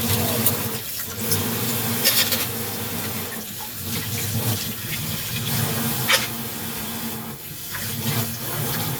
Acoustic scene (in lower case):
kitchen